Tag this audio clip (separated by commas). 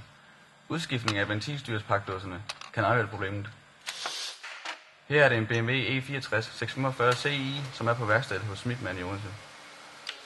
Speech